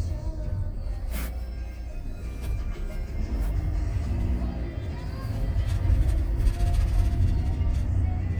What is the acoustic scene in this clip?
car